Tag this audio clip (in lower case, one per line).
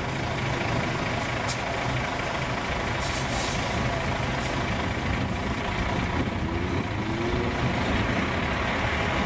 car
outside, urban or man-made
vehicle